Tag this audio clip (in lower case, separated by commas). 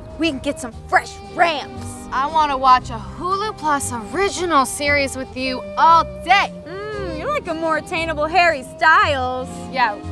music, speech